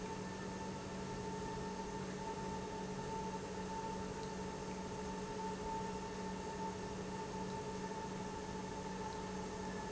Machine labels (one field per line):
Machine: pump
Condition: normal